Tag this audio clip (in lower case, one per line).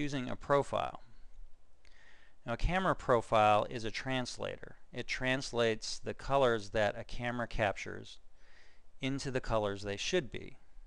speech